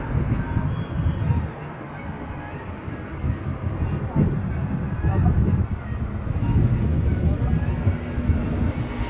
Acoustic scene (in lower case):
street